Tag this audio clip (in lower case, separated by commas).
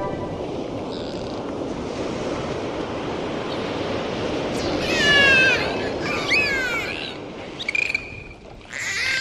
animal